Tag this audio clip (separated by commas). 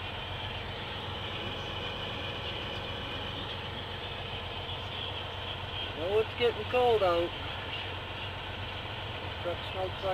Vehicle, Speech